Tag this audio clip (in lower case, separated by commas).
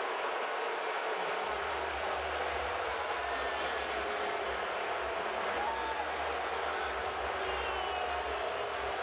people booing